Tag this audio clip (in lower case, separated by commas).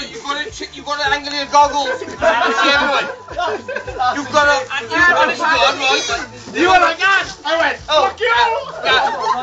music, speech